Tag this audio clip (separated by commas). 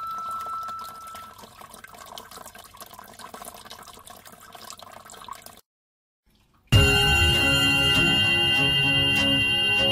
Music